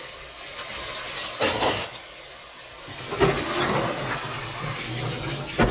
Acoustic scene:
kitchen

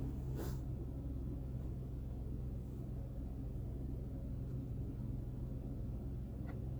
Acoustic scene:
car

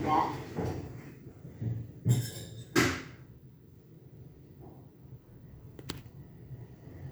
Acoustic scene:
elevator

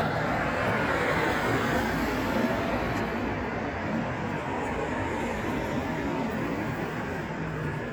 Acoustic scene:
street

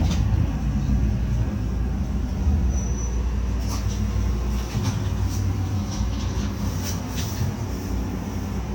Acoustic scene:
bus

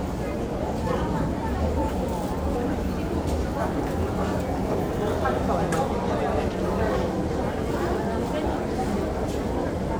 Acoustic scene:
crowded indoor space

